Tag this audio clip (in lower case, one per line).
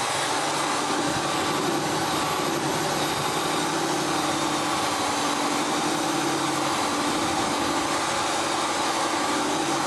rowboat